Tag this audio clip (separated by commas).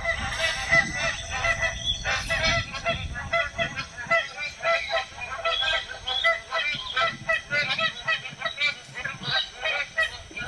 goose honking